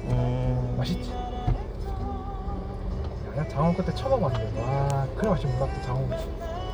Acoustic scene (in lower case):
car